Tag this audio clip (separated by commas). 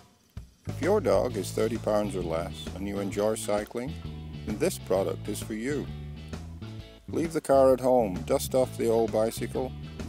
Music, Speech